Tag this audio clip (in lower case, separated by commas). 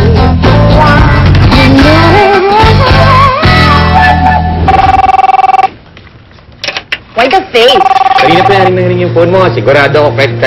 music, speech